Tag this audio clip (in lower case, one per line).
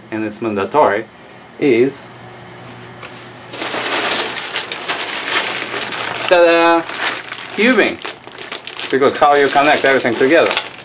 speech